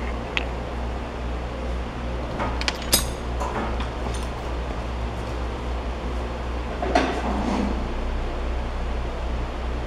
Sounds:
idling

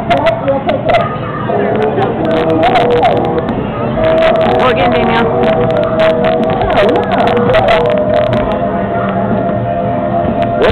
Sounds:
speech
music

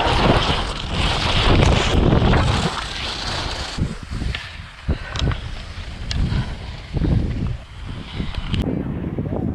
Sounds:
skiing

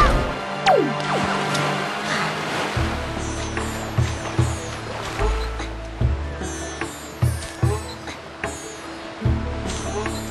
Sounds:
music

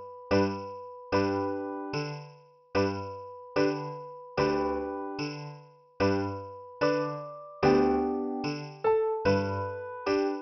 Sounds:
music

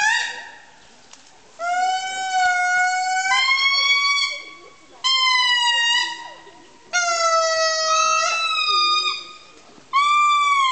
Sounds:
speech
outside, rural or natural

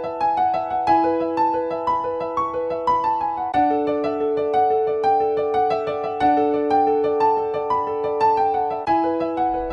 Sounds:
music

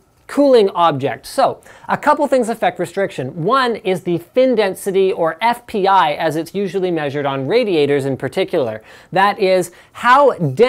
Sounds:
speech

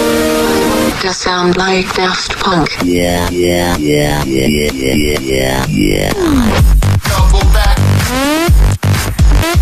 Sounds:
music

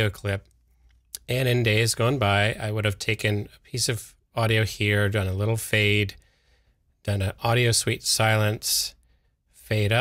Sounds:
speech

